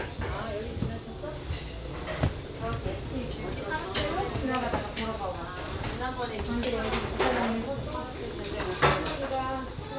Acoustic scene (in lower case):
restaurant